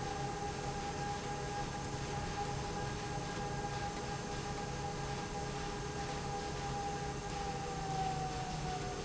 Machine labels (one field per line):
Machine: slide rail